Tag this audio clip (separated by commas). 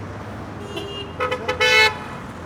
Vehicle, Motor vehicle (road)